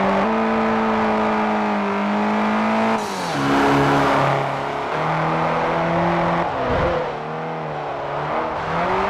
High performance car engine on a road